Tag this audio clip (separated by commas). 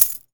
home sounds, Coin (dropping)